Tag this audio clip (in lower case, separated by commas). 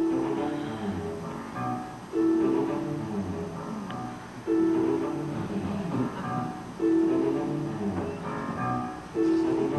classical music, music